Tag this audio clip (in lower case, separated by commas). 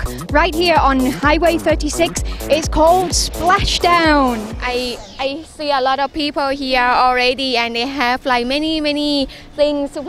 music, speech